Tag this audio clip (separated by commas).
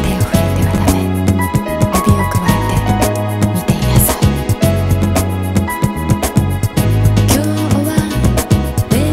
Violin, Musical instrument, Music